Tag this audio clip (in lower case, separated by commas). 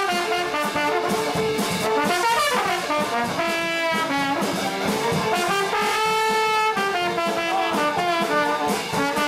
playing trombone, music, trombone, musical instrument